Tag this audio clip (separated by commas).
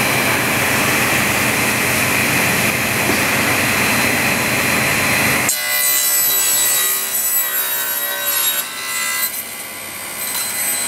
planing timber